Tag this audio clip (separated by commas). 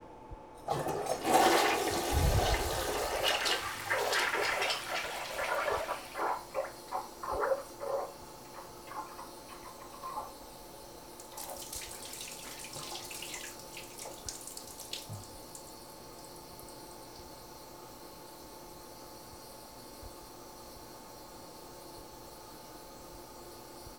Toilet flush, Domestic sounds